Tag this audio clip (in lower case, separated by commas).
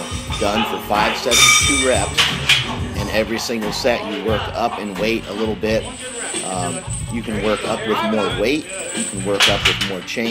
speech, music